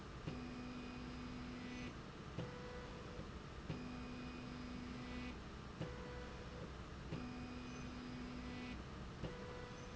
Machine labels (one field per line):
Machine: slide rail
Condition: normal